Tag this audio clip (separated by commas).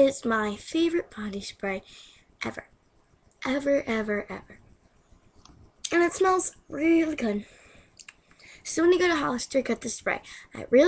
Speech